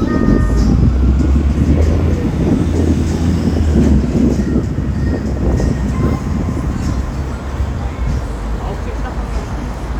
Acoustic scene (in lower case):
street